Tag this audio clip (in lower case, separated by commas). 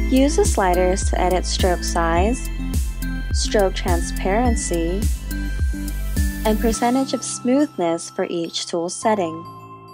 music, speech